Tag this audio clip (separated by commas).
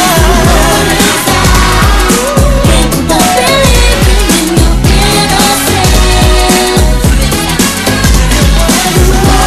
Singing, Pop music, inside a public space, Music